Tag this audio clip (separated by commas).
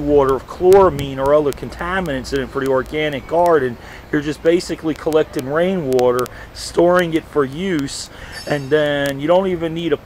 Speech